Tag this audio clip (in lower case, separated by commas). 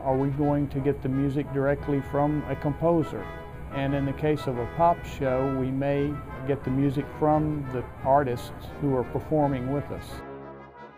music, speech, orchestra